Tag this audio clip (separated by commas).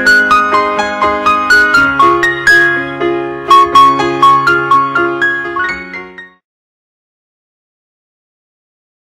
Music